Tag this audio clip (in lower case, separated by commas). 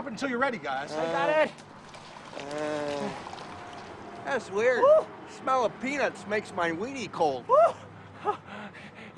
speech, pour